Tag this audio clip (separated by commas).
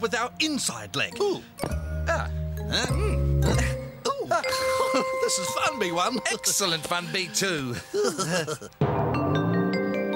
Marimba, Vibraphone